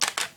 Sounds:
mechanisms, camera

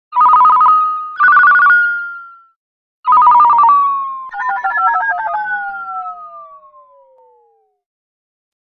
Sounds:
telephone, alarm, ringtone

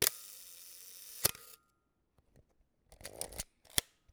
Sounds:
mechanisms, camera

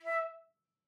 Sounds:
musical instrument, music, woodwind instrument

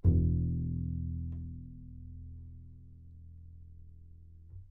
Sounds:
musical instrument, bowed string instrument, music

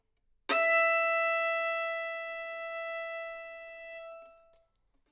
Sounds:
music, bowed string instrument, musical instrument

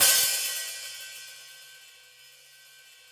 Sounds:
hi-hat, cymbal, musical instrument, music, percussion

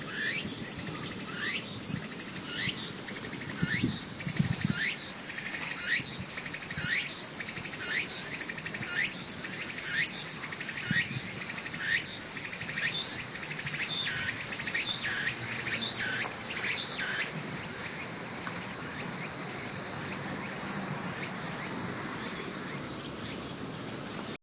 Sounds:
insect, wild animals, animal

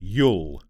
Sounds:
human voice, man speaking, speech

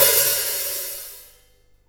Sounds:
hi-hat, musical instrument, cymbal, percussion, music

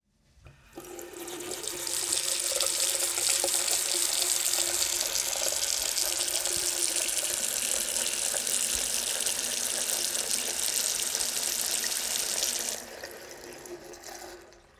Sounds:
faucet, domestic sounds

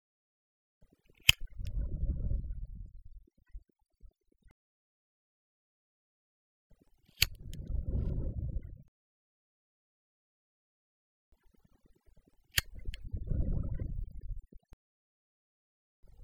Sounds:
fire

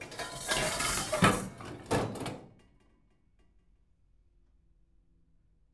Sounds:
home sounds, dishes, pots and pans

